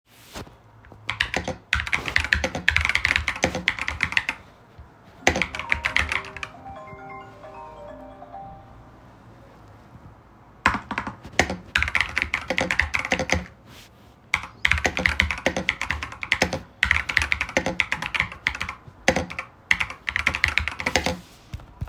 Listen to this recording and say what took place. As I am typing on my keyboard, I get a phone call. I mute the call and start typing again.